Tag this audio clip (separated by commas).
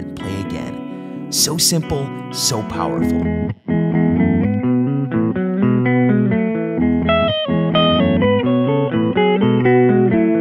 Plucked string instrument, Speech, Music, Effects unit, Bass guitar, Electric guitar, Distortion, Guitar, Musical instrument